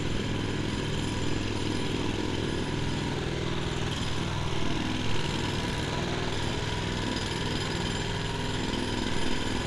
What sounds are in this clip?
unidentified impact machinery